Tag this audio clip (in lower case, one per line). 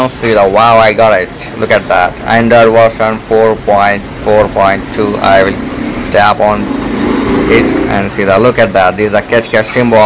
outside, urban or man-made
speech